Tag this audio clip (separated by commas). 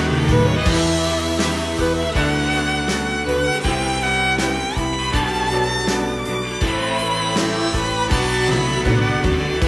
Music